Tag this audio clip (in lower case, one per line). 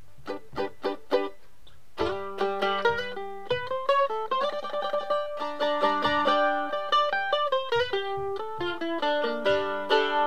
music
musical instrument
plucked string instrument
mandolin